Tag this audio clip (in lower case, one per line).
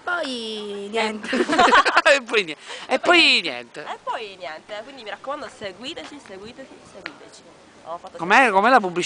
speech